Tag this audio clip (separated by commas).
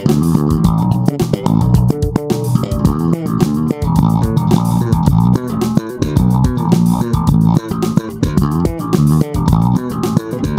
Plucked string instrument, Musical instrument, Music, Bass guitar, Guitar, playing bass guitar